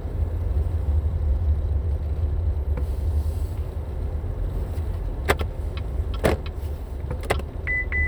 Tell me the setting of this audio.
car